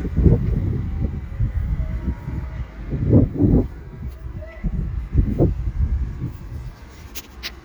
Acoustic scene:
residential area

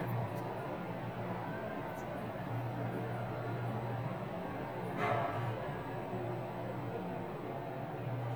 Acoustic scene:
elevator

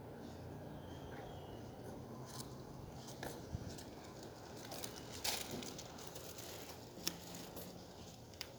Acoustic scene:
residential area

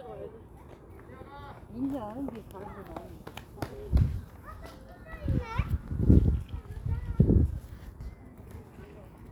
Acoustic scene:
park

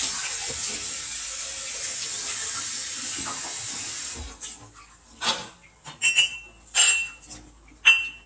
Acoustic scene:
kitchen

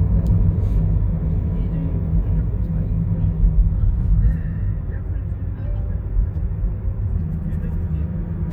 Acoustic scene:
car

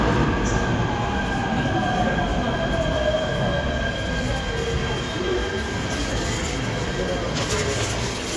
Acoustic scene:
subway station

